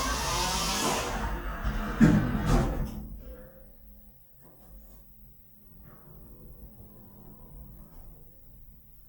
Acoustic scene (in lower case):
elevator